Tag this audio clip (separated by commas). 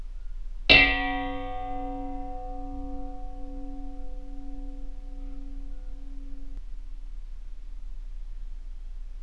dishes, pots and pans, Domestic sounds